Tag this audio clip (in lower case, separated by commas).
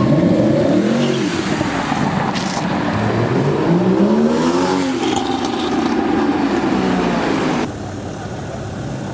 vroom